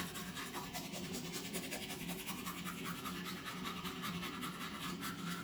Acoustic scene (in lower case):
restroom